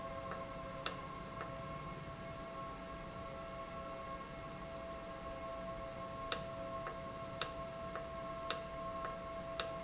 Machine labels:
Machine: valve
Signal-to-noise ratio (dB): 0 dB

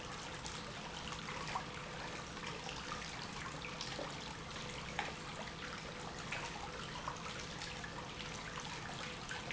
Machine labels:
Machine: pump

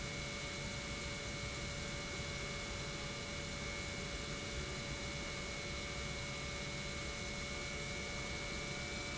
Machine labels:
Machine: pump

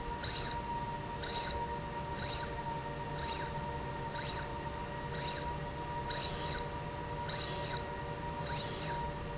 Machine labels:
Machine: slide rail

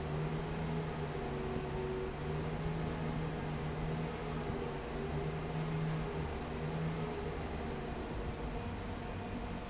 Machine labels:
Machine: fan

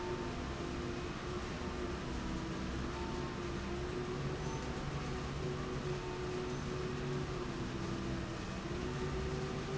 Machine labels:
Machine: slide rail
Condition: normal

